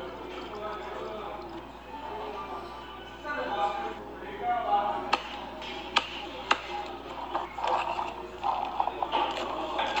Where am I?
in a cafe